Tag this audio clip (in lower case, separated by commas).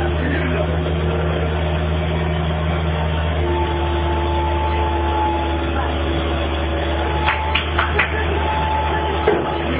vehicle, speech